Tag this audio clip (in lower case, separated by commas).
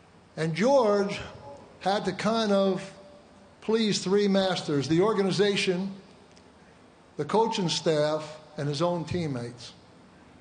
speech, male speech, monologue